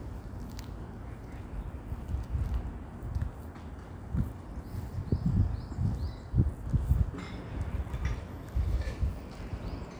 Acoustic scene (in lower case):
residential area